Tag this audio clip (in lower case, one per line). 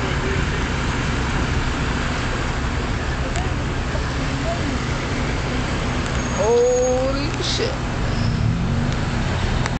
vehicle
car
speech